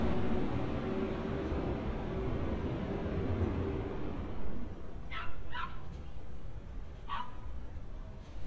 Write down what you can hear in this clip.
dog barking or whining